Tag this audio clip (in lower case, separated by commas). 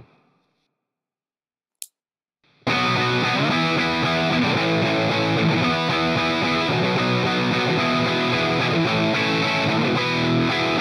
music